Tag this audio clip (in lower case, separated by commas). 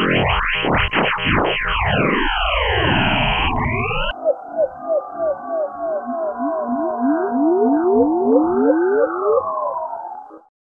synthesizer, music